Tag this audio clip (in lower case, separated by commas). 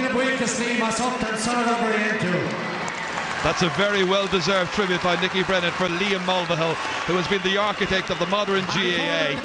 male speech, monologue, speech, conversation